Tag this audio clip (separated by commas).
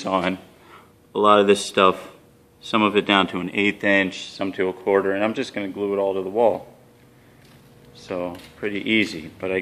Speech